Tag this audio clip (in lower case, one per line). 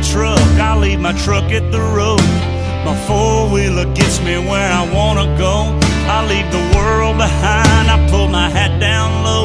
music